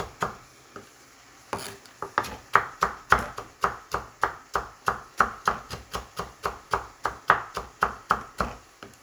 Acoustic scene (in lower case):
kitchen